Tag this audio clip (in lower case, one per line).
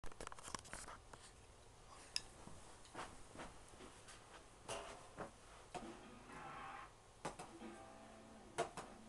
inside a small room